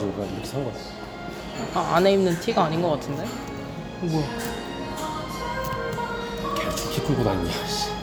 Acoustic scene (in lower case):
cafe